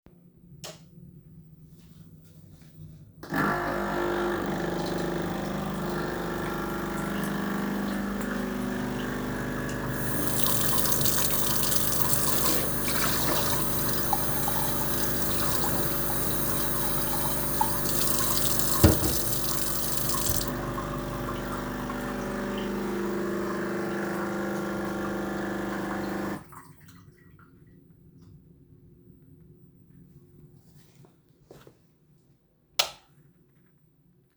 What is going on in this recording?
I turned on light at kitchen, started wash cup at sink, after that I started the coffee machine, then turned on the kitchen faucet to fill a glass.The coffee machine's gurgling overlapped with the running water for around 15 seconds.